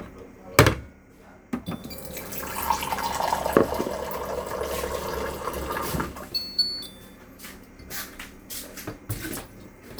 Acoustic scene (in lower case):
kitchen